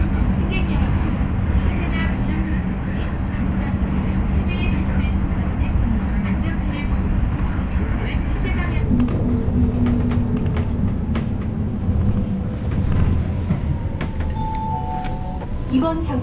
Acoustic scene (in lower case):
bus